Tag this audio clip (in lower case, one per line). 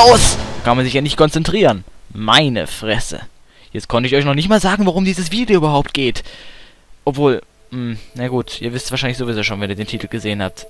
music
speech